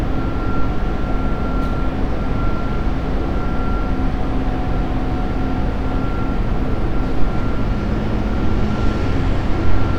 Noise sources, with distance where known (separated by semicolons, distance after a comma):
large-sounding engine, near; reverse beeper